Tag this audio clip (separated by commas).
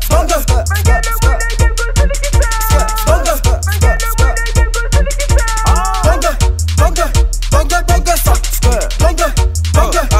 Soundtrack music, Music